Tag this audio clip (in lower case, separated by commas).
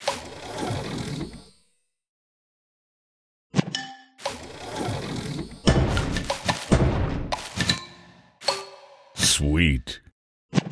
speech